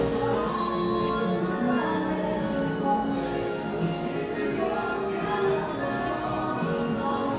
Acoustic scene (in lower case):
cafe